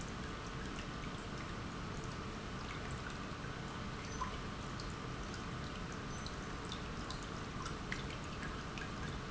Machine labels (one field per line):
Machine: pump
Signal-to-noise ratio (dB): 0 dB